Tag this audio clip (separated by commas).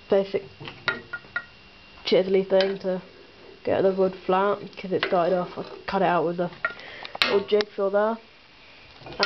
Speech